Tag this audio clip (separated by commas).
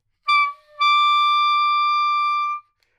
Music, Musical instrument, Wind instrument